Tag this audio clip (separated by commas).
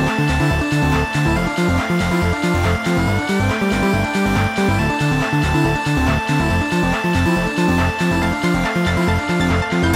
Electronic music, Trance music, Music, Video game music